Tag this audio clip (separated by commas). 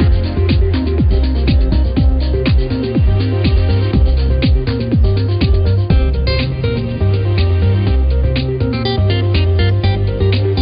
Music